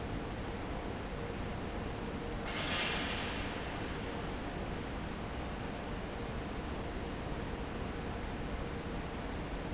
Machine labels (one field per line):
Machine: fan